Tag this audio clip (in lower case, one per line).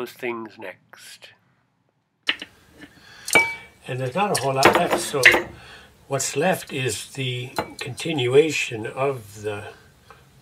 dishes, pots and pans
speech